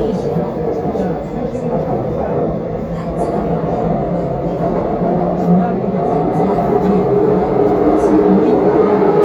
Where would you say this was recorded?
on a subway train